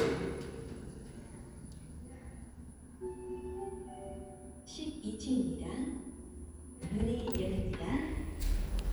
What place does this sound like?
elevator